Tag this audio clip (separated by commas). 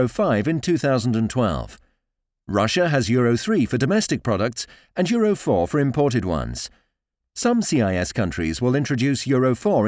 Speech